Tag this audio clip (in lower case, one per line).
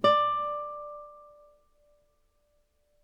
plucked string instrument
musical instrument
music
guitar